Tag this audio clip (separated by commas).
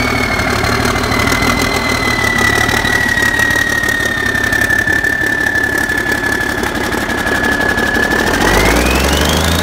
Vibration, Engine